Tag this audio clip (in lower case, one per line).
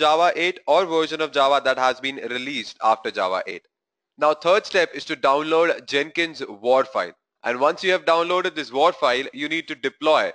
speech